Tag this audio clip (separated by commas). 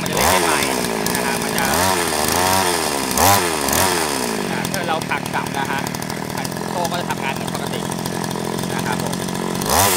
Speech